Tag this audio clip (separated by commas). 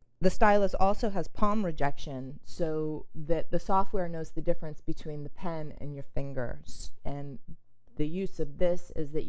Speech